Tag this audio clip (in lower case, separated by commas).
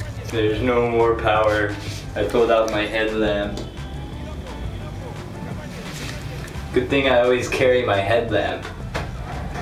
music, speech